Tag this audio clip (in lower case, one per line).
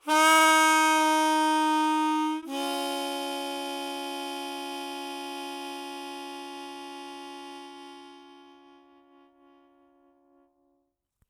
harmonica
musical instrument
music